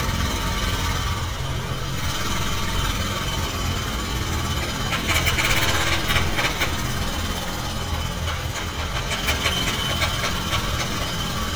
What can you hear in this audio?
jackhammer